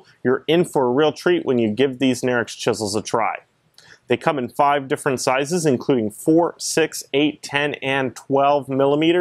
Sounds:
speech

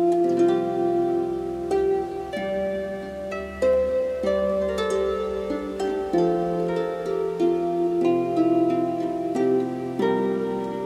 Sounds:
plucked string instrument, musical instrument, harp, music

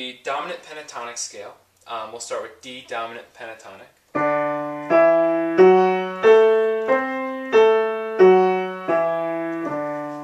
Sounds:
speech, music

